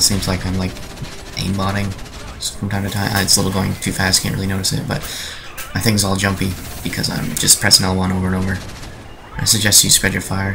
A male voice speaking calmly accompanies the quieter firing of an automatic gun, accompanied by occasional speech from a secondary lower male voice